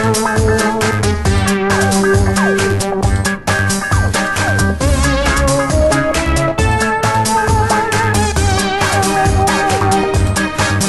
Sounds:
Music

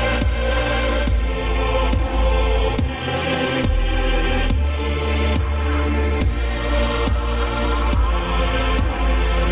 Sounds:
Dubstep, Music

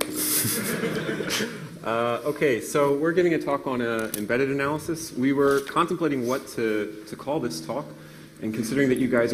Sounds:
Speech

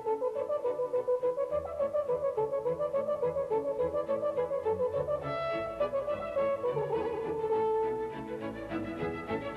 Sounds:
playing french horn

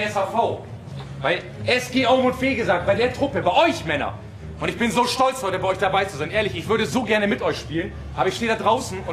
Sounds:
Speech, Male speech

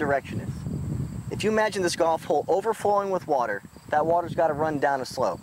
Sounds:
Speech

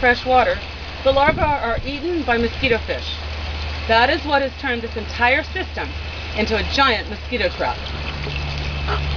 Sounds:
Trickle, Speech

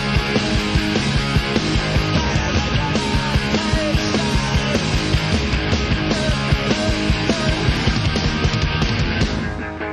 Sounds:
Music, Singing

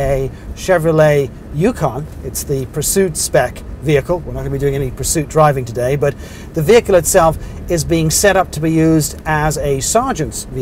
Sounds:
Speech

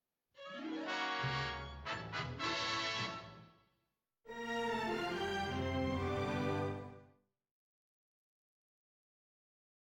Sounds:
Music, Television

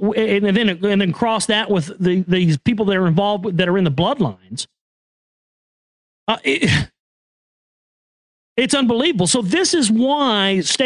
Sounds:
Speech

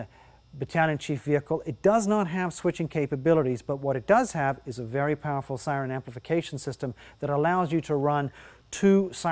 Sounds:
Speech

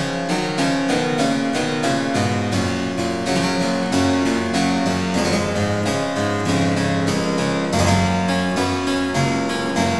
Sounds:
Harpsichord, Keyboard (musical), playing harpsichord

